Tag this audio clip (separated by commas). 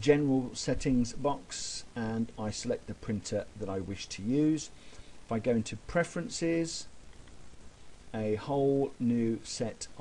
Speech